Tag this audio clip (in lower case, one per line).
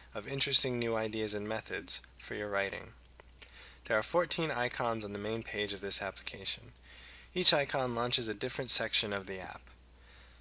speech